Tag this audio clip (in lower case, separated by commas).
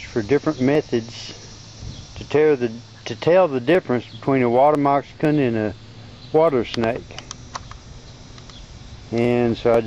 speech